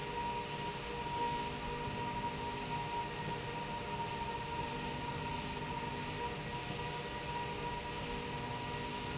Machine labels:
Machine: slide rail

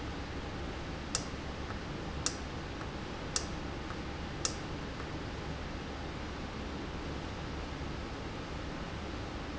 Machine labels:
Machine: valve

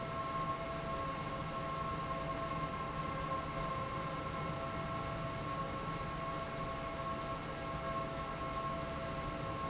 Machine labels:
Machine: fan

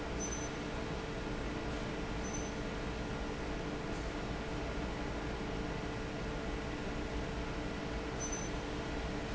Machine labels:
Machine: fan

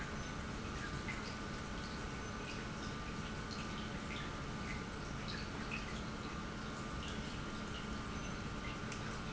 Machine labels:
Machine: pump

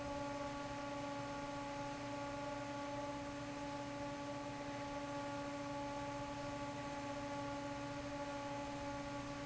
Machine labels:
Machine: fan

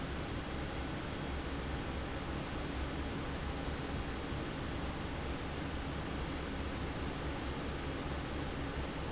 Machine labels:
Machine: fan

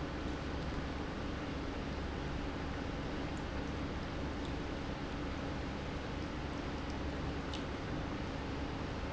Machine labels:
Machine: pump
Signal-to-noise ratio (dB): -6 dB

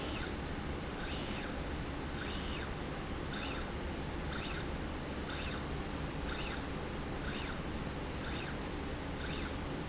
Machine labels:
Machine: slide rail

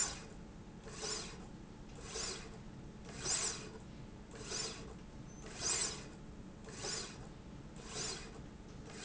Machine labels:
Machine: slide rail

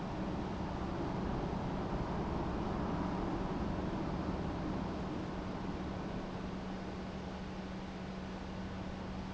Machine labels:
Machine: pump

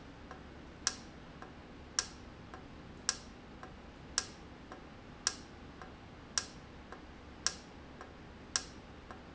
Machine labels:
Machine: valve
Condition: normal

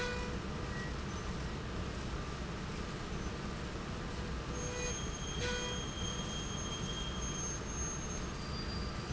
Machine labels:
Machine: slide rail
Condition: normal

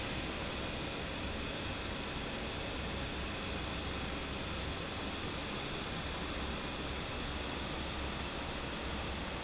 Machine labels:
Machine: fan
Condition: normal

